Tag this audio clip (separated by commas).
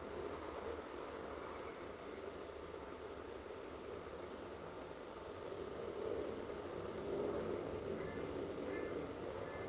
Pigeon, Bird, outside, rural or natural